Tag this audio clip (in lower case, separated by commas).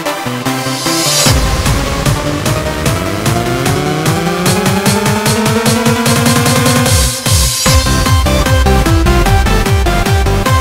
techno, electronic music, music